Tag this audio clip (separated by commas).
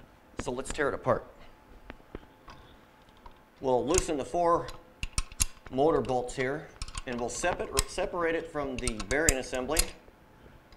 Speech